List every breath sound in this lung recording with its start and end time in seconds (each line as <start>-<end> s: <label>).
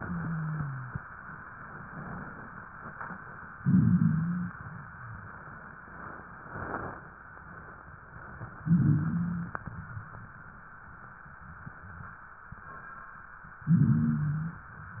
0.00-0.98 s: wheeze
3.56-4.54 s: inhalation
3.56-4.54 s: wheeze
8.56-9.54 s: inhalation
8.56-9.54 s: wheeze
13.64-14.62 s: inhalation
13.64-14.62 s: wheeze